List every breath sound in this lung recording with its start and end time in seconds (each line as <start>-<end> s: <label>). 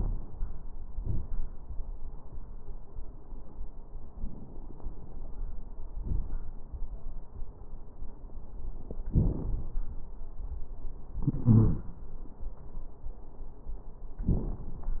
4.20-5.42 s: inhalation
4.20-5.42 s: crackles
5.97-6.53 s: exhalation
5.97-6.53 s: crackles
11.44-11.81 s: wheeze